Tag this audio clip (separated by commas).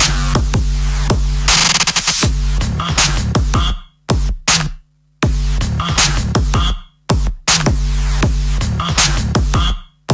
Dubstep